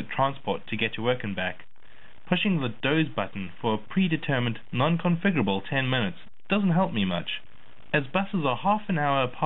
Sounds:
Speech

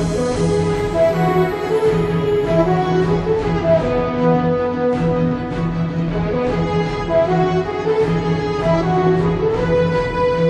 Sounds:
Music

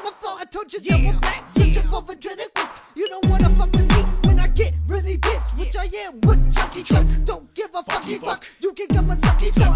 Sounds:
Music, Tender music

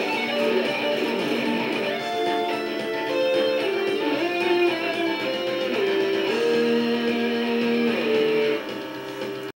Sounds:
Musical instrument, Music, Plucked string instrument, Guitar

